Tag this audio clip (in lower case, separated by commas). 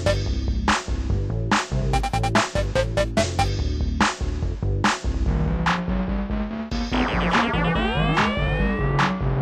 video game music, music